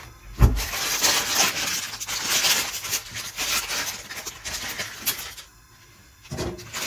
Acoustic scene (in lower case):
kitchen